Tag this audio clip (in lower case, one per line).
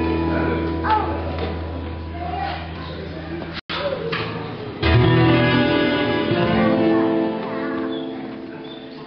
speech
guitar
bass guitar
strum
plucked string instrument
music